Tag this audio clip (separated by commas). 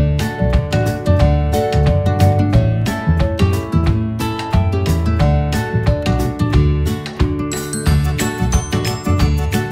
Music